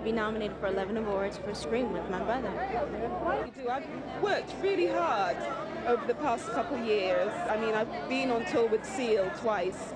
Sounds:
speech

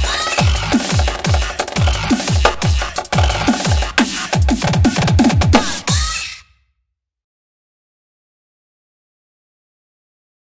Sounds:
drum kit, percussion, snare drum, drum, drum roll, bass drum

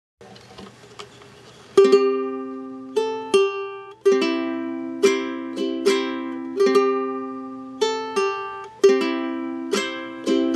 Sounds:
playing ukulele

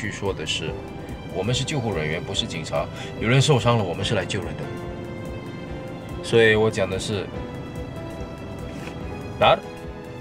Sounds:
music, speech

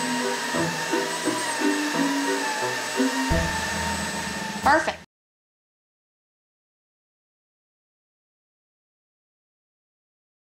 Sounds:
vacuum cleaner cleaning floors

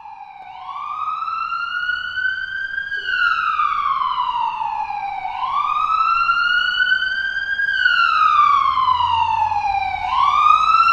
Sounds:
ambulance siren

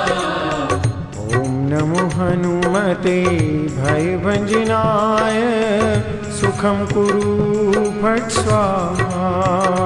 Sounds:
mantra, music

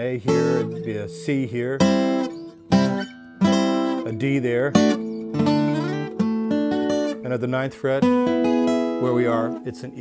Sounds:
music, speech, plucked string instrument, acoustic guitar, guitar, musical instrument

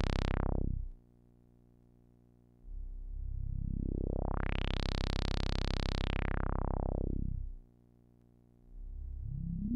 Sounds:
musical instrument, music, synthesizer, playing synthesizer

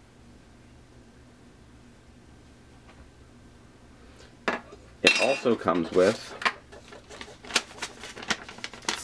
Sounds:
speech

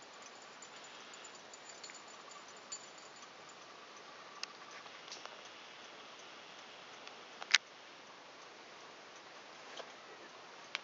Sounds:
tick-tock

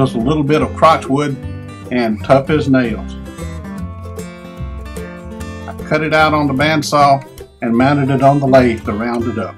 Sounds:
speech, music

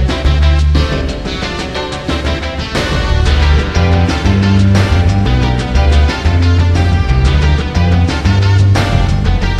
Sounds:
music

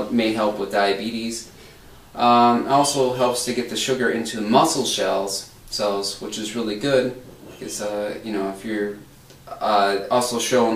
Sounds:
inside a small room, speech

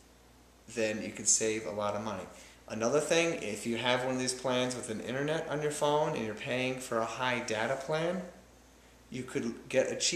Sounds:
speech, inside a small room

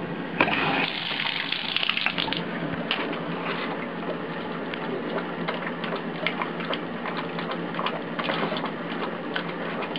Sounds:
tap, gush

